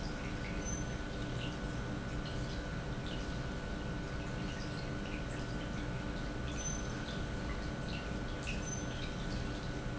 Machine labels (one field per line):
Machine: pump